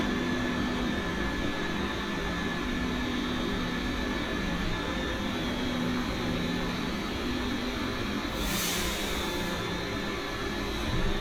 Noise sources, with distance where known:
engine of unclear size, near

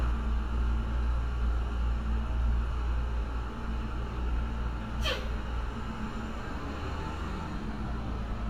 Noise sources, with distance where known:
large-sounding engine

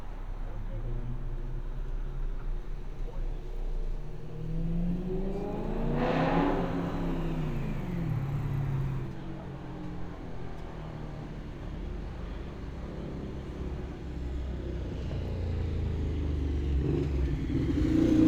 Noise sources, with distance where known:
medium-sounding engine, near

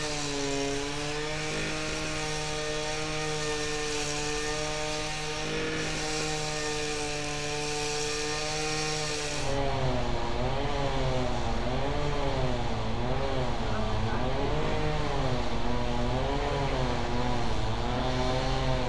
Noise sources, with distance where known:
unidentified powered saw

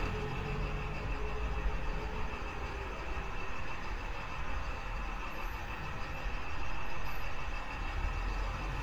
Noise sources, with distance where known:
large-sounding engine, near

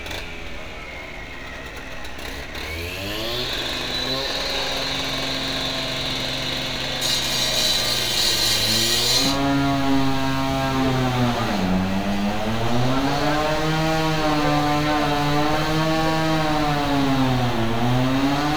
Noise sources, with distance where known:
unidentified powered saw, near

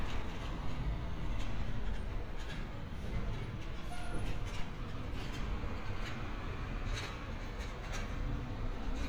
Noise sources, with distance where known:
large-sounding engine, far; unidentified impact machinery, near

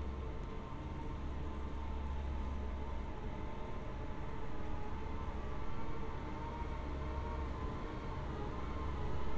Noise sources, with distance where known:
unidentified powered saw, far

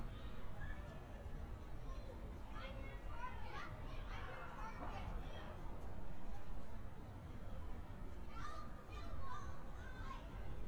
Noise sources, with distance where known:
person or small group shouting, far

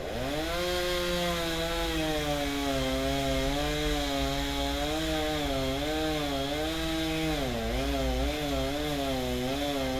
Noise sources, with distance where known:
chainsaw, near

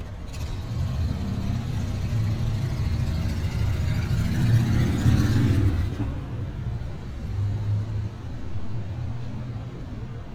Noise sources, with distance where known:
small-sounding engine

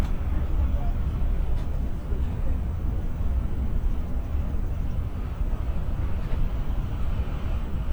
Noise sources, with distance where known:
engine of unclear size, far

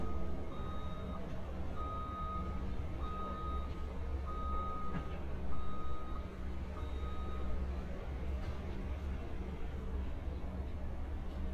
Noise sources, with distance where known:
reverse beeper, near

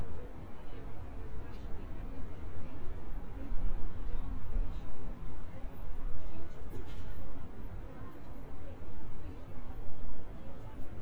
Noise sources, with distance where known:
person or small group talking, near

